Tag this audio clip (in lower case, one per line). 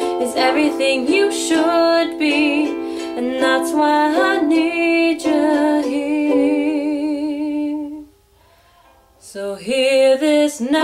singing
plucked string instrument
music
musical instrument
ukulele